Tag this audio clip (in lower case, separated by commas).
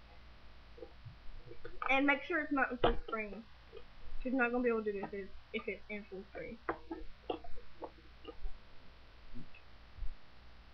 speech